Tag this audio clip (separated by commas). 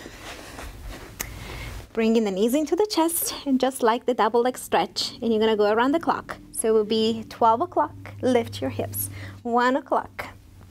Speech